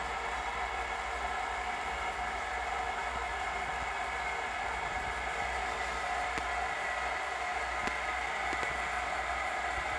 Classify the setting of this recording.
restroom